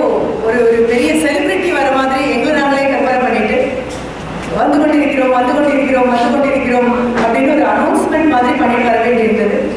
A female giving a speech